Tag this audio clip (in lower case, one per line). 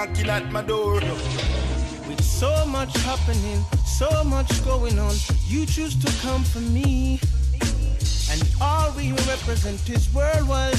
music